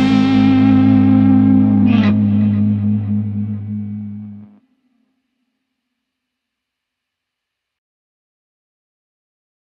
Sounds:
Distortion, Guitar, Music, Plucked string instrument, Effects unit, Musical instrument

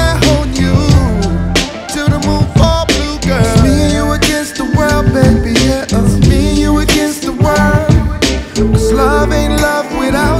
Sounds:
Music, Psychedelic rock, Rhythm and blues

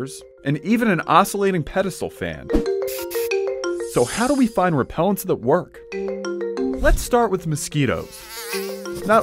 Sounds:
Mosquito, Insect, Fly

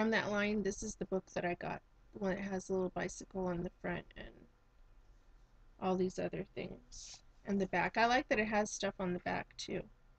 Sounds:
Speech

